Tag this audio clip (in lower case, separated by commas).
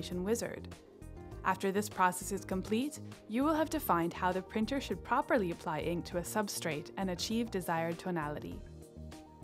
music, speech